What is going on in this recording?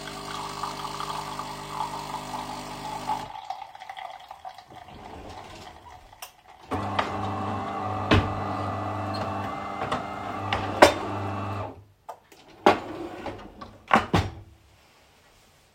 The coffee spilled from the coffee machine while I was searching for something in two drawers.